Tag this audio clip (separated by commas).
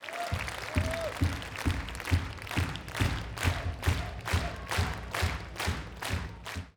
Applause, Human group actions